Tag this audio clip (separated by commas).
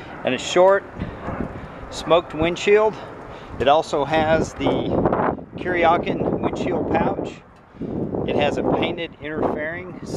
Speech